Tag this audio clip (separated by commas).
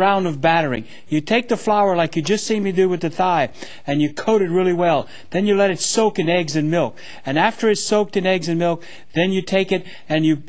Speech